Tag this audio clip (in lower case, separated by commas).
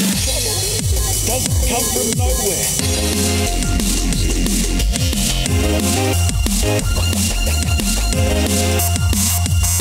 music, techno, dubstep